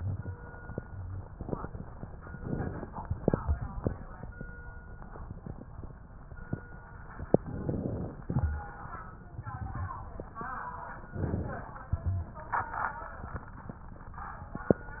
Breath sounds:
2.37-3.15 s: inhalation
7.44-8.22 s: inhalation
11.12-11.90 s: inhalation

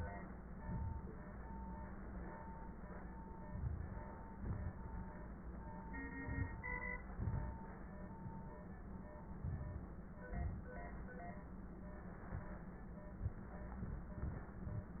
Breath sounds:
3.49-4.04 s: inhalation
4.33-4.75 s: exhalation
6.19-6.60 s: inhalation
7.13-7.55 s: exhalation
9.45-9.91 s: inhalation
10.30-10.76 s: exhalation

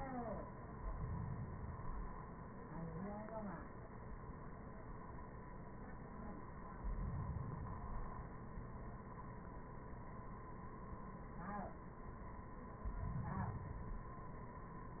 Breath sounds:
0.68-2.16 s: inhalation
6.82-8.30 s: inhalation
12.82-14.30 s: inhalation

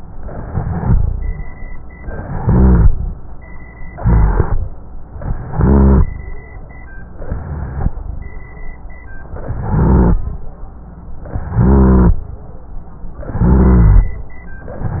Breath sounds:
0.00-1.33 s: inhalation
0.00-1.33 s: rhonchi
1.97-3.21 s: inhalation
1.97-3.21 s: rhonchi
3.96-4.76 s: inhalation
3.96-4.76 s: rhonchi
5.24-6.04 s: inhalation
5.24-6.04 s: rhonchi
7.15-7.95 s: inhalation
7.15-7.95 s: rhonchi
9.41-10.21 s: inhalation
9.41-10.21 s: rhonchi
11.31-12.14 s: inhalation
11.31-12.14 s: rhonchi
13.28-14.12 s: inhalation
13.28-14.12 s: rhonchi

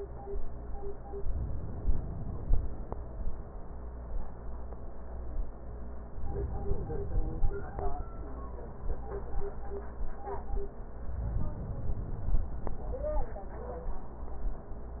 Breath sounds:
1.35-2.85 s: inhalation
6.17-7.94 s: inhalation
11.12-12.90 s: inhalation

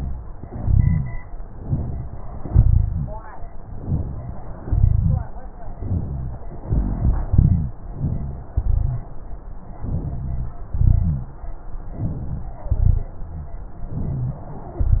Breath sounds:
0.42-1.18 s: exhalation
0.42-1.18 s: rhonchi
1.56-2.45 s: inhalation
2.50-3.13 s: exhalation
2.50-3.13 s: rhonchi
3.76-4.65 s: inhalation
4.65-5.28 s: exhalation
4.65-5.28 s: rhonchi
5.77-6.45 s: inhalation
5.77-6.45 s: rhonchi
6.70-7.74 s: exhalation
6.72-7.72 s: rhonchi
7.82-8.54 s: inhalation
7.82-8.54 s: rhonchi
8.54-9.18 s: exhalation
8.54-9.18 s: rhonchi
9.83-10.62 s: inhalation
9.83-10.62 s: rhonchi
10.70-11.50 s: exhalation
10.70-11.50 s: rhonchi
11.97-12.69 s: inhalation
12.01-12.56 s: rhonchi
12.70-13.11 s: rhonchi
13.93-14.78 s: inhalation

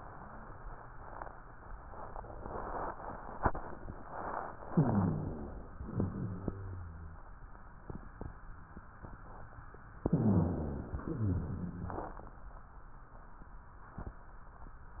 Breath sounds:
4.67-5.66 s: inhalation
4.67-5.66 s: rhonchi
5.77-7.17 s: exhalation
5.77-7.17 s: rhonchi
10.02-11.03 s: inhalation
10.02-11.03 s: rhonchi
11.08-12.18 s: exhalation
11.08-12.18 s: rhonchi

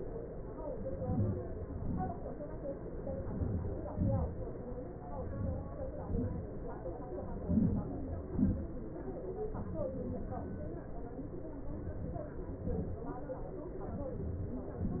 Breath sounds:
1.03-1.58 s: inhalation
1.79-2.23 s: exhalation
3.27-3.84 s: inhalation
3.92-4.40 s: exhalation
5.34-5.90 s: inhalation
6.02-6.50 s: exhalation
7.42-7.99 s: inhalation
8.30-8.74 s: exhalation

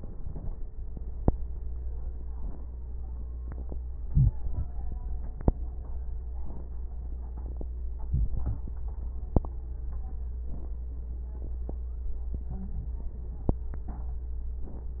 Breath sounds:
4.04-4.37 s: inhalation
8.06-8.64 s: inhalation
8.06-8.64 s: crackles
12.42-13.00 s: stridor

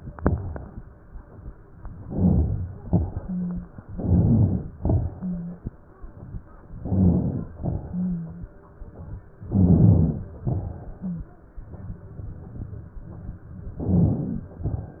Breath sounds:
0.00-0.78 s: exhalation
0.00-0.78 s: crackles
1.99-2.77 s: inhalation
1.99-2.77 s: crackles
2.83-3.74 s: exhalation
2.83-3.74 s: crackles
3.17-3.68 s: wheeze
3.90-4.70 s: inhalation
3.90-4.70 s: crackles
4.78-5.67 s: exhalation
4.78-5.67 s: crackles
5.13-5.67 s: wheeze
6.73-7.51 s: inhalation
6.73-7.51 s: crackles
7.57-8.50 s: exhalation
7.57-8.50 s: crackles
7.90-8.50 s: wheeze
9.47-10.36 s: inhalation
9.47-10.36 s: crackles
10.42-11.32 s: exhalation
10.42-11.32 s: crackles
10.96-11.32 s: wheeze
13.77-14.51 s: crackles
13.79-14.53 s: inhalation
14.61-15.00 s: exhalation
14.61-15.00 s: crackles

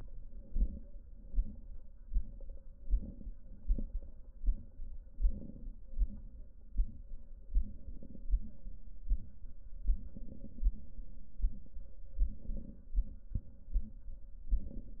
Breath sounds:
0.13-0.95 s: inhalation
2.71-3.53 s: inhalation
4.99-5.81 s: inhalation
7.53-8.31 s: inhalation
9.96-10.74 s: inhalation
12.18-12.96 s: inhalation
14.42-15.00 s: inhalation

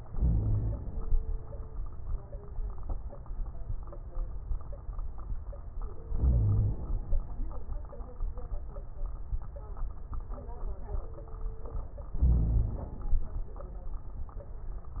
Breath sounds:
0.11-0.76 s: wheeze
0.11-1.09 s: inhalation
6.09-6.75 s: wheeze
6.09-7.12 s: inhalation
12.16-12.98 s: wheeze
12.16-13.24 s: inhalation

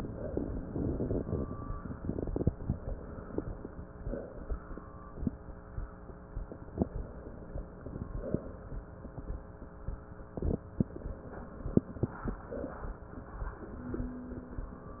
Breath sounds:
0.00-0.61 s: exhalation
0.67-2.52 s: inhalation
6.81-8.07 s: inhalation
8.07-8.74 s: exhalation
10.83-12.31 s: inhalation
12.31-13.11 s: exhalation

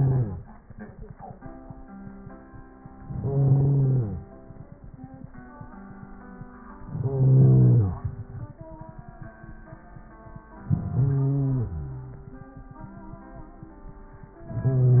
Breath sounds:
3.01-4.25 s: inhalation
6.86-8.11 s: inhalation
10.61-12.41 s: inhalation

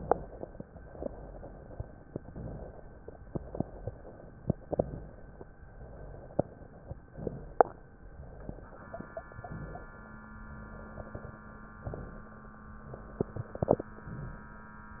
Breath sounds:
2.16-2.83 s: inhalation
3.26-3.93 s: exhalation
4.72-5.39 s: inhalation
5.79-6.45 s: exhalation
7.17-7.84 s: inhalation
8.16-8.82 s: exhalation
9.37-10.04 s: inhalation
10.46-11.12 s: exhalation
11.80-12.47 s: inhalation
12.81-13.47 s: exhalation

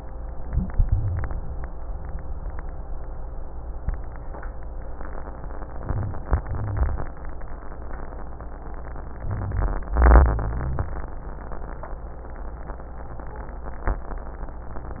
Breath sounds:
0.68-1.46 s: exhalation
0.68-1.46 s: rhonchi
5.77-6.26 s: inhalation
5.77-6.26 s: rhonchi
6.28-7.06 s: exhalation
6.45-7.06 s: rhonchi
9.16-9.96 s: inhalation
9.16-9.96 s: rhonchi
9.98-10.93 s: exhalation
9.98-10.93 s: rhonchi

